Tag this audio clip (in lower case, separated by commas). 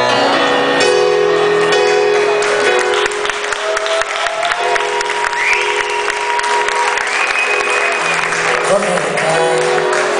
music, exciting music